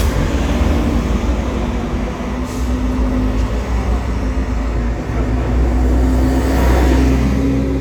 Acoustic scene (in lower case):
street